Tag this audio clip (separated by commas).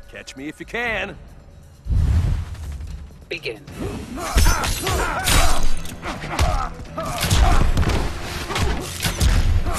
Speech, Thump